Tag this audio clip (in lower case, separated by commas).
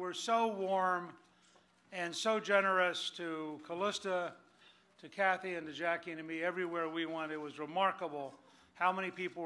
monologue, speech, male speech